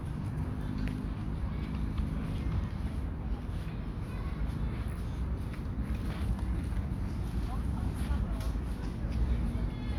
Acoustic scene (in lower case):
park